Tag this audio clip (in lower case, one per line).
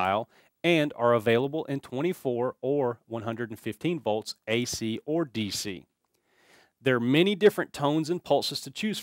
speech